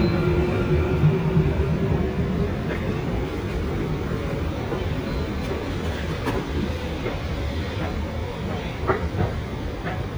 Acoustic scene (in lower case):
subway station